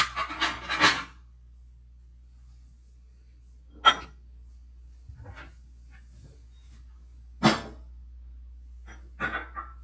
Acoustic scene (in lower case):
kitchen